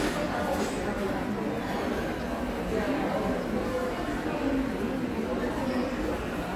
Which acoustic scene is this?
subway station